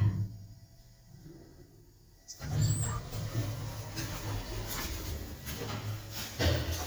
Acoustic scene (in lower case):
elevator